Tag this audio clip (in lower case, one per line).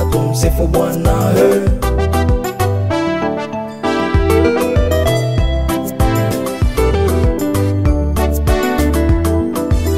gospel music
music